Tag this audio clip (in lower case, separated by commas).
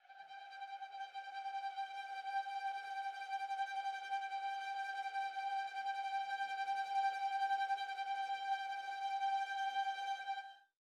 musical instrument, music, bowed string instrument